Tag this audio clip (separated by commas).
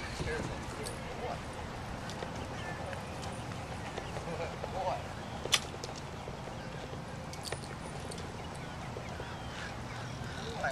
Speech, Bicycle